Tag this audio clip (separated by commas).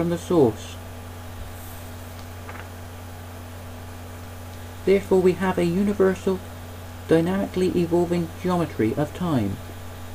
Speech, inside a small room